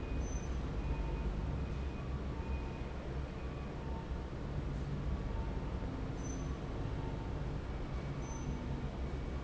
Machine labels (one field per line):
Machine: fan